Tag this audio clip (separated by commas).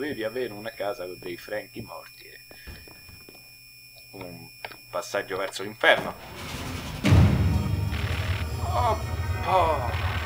Computer keyboard